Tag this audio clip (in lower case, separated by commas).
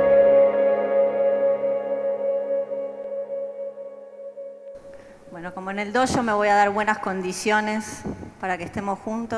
speech, music, ambient music, woman speaking